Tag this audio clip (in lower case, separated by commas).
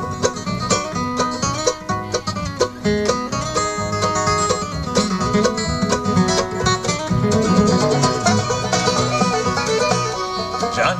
music, playing banjo, country, banjo